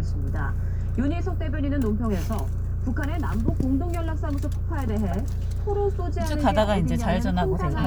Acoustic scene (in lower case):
car